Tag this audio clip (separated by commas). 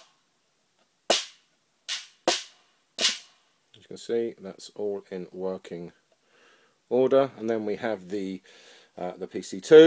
Speech